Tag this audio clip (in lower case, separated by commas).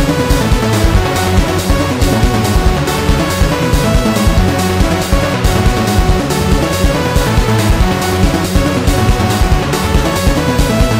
music, video game music